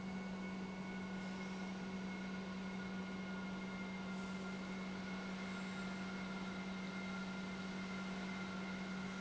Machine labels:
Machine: pump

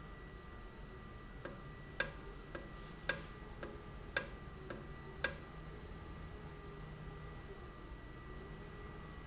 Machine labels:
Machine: valve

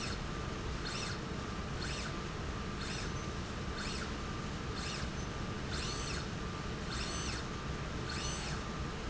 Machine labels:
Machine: slide rail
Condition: normal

